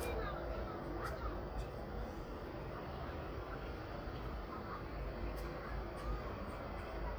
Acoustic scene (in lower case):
residential area